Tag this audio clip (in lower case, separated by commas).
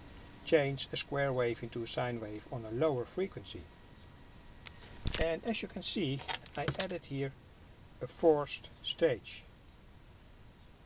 speech